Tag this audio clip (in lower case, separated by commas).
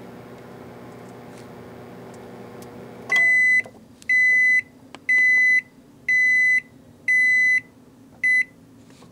microwave oven, beep